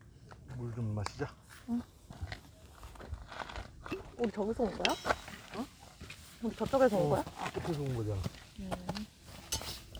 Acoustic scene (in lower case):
park